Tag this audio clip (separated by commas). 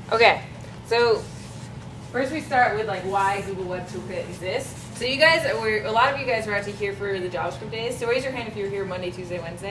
Speech